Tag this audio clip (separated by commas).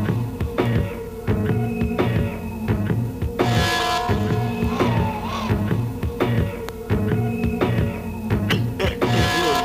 Music, Speech